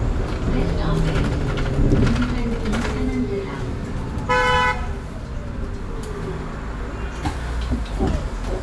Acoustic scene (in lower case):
bus